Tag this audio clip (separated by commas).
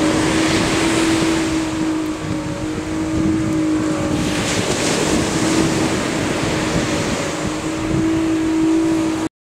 Vehicle, Boat, Motorboat